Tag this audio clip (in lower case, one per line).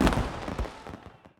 fireworks
explosion